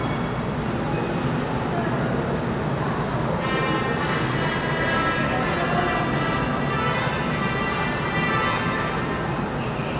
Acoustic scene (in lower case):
subway station